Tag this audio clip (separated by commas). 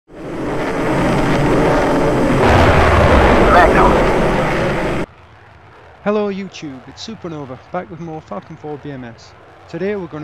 airplane, Aircraft, Vehicle